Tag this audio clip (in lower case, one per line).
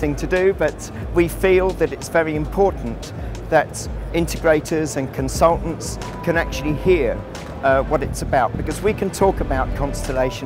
music
speech